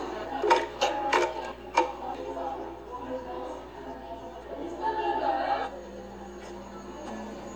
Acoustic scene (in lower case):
cafe